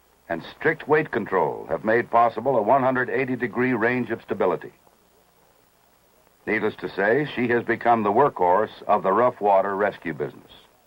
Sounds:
speech

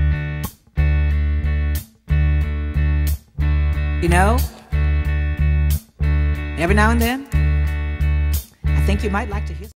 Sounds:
music
speech

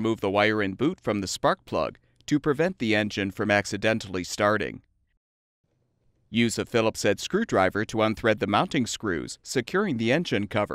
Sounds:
speech

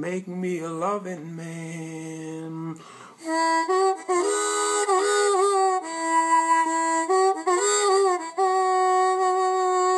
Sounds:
harmonica
speech
music

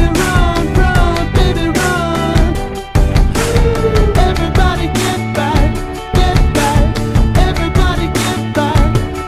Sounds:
music

